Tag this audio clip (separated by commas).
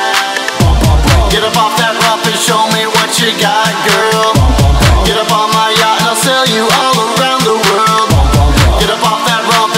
Dance music, House music, Music